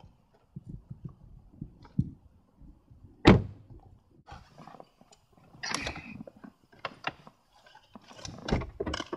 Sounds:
outside, urban or man-made

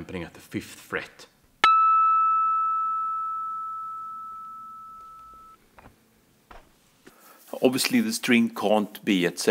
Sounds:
speech

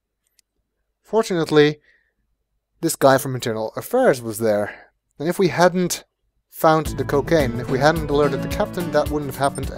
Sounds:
music
monologue
speech

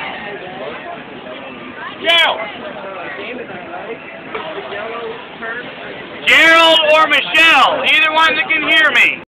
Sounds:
speech

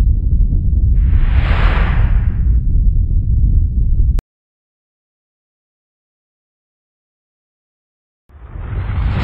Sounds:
sound effect

